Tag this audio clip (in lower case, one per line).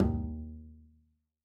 musical instrument
bowed string instrument
music